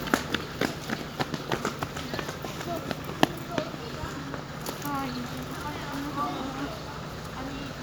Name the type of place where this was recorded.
residential area